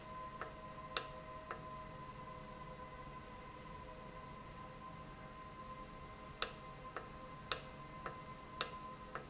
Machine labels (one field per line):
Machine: valve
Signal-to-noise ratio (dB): 6 dB